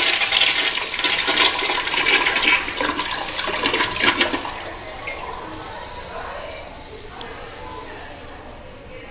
Water running and people talking in background